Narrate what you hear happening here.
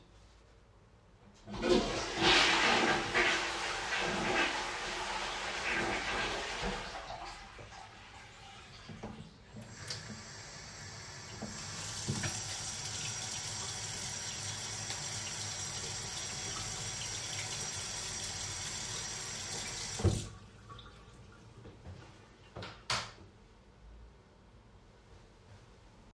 I flushed the toilet, then my friend opened the tap water, let it run for a couple seconds, turned it off and then flipped the light switch.